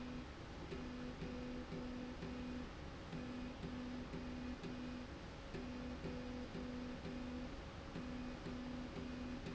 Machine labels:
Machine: slide rail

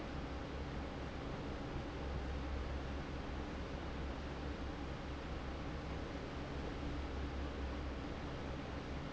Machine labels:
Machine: fan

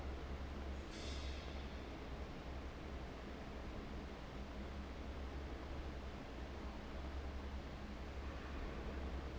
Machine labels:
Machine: fan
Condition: abnormal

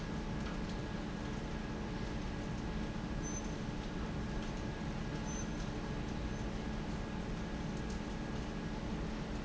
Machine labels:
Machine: fan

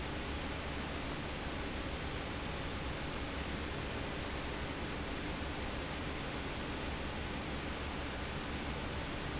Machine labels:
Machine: fan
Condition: abnormal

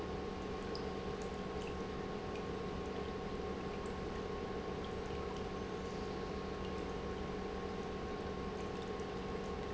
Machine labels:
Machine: pump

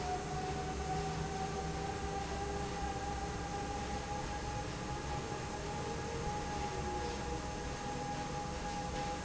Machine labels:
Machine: fan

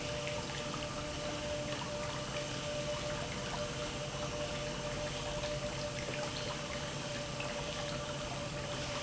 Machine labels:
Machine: pump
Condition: normal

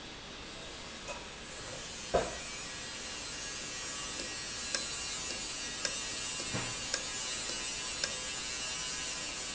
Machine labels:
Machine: valve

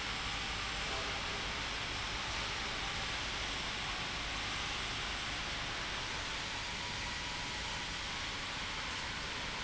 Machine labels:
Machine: pump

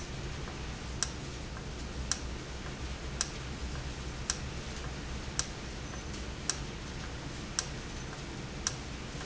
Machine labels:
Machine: valve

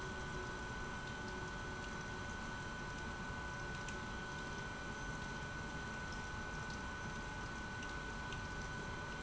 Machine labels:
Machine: pump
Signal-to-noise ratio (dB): 6 dB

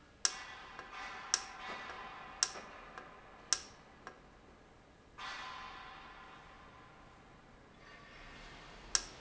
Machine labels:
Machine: valve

